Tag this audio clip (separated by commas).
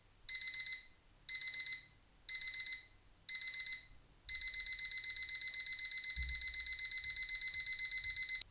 Alarm